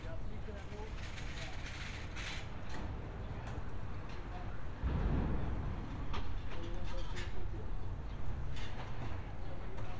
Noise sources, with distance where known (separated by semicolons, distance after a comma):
person or small group talking, far